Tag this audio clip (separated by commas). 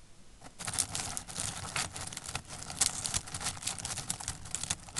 Crackle